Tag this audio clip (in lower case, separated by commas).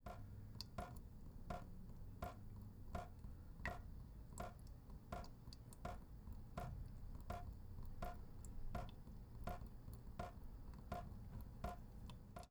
drip, liquid, sink (filling or washing), home sounds